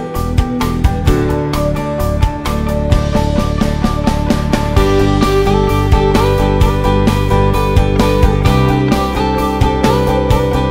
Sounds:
music

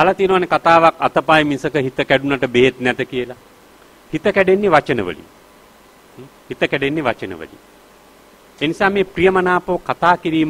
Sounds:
male speech, speech, narration

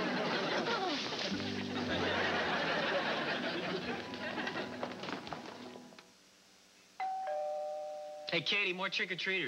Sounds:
music, speech, doorbell

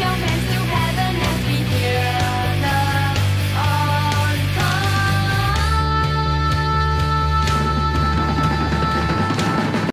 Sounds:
music, singing, progressive rock

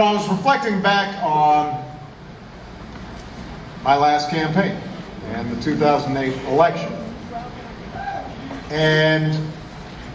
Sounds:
speech, male speech, narration

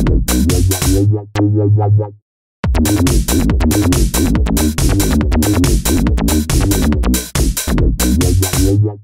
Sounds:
music, disco

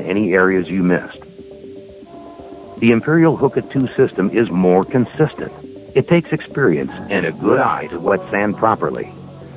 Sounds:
speech, music

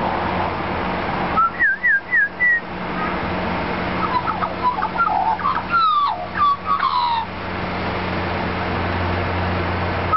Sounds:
outside, urban or man-made, crow, bird

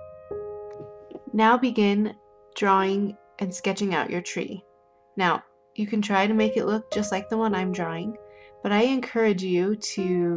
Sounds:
speech, music

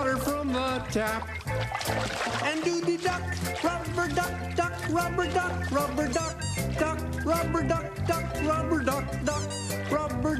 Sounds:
music, speech

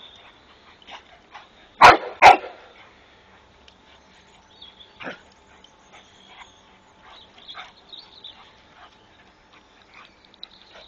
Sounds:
domestic animals, bird, bark, dog barking, animal, dog

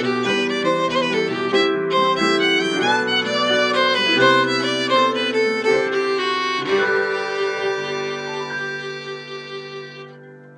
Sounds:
classical music, bowed string instrument, music, violin, musical instrument

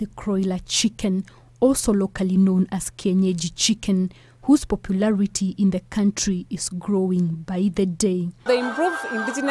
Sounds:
chicken, speech, cluck

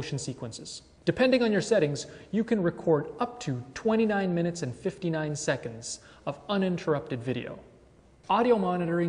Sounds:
speech

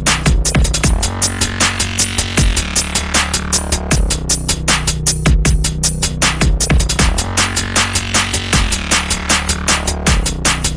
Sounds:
dubstep, music

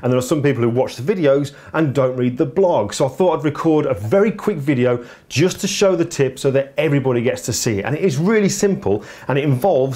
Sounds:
speech

